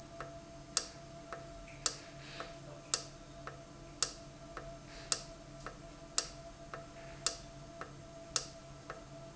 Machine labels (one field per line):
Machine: valve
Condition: normal